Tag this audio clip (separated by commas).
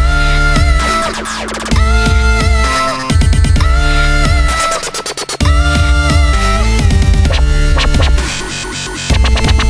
Electronic music, Music, Dubstep